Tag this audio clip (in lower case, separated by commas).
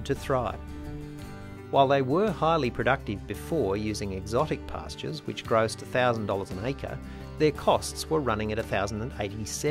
speech, music